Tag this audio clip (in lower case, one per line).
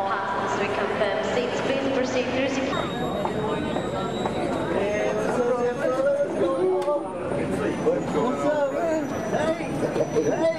speech